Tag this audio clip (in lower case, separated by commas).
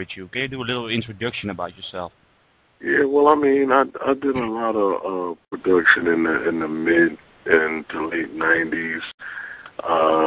speech